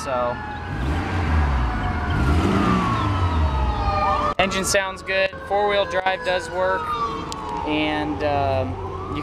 Man speaking and car sirens